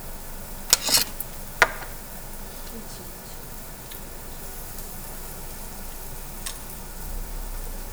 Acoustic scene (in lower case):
restaurant